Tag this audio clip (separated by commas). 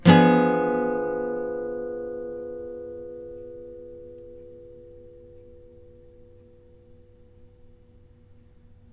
Musical instrument, Acoustic guitar, Plucked string instrument, Music, Guitar